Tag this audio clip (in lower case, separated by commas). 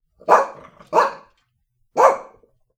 animal, bark, dog, pets